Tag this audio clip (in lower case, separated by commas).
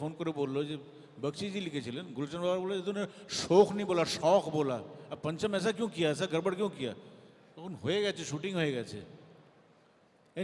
speech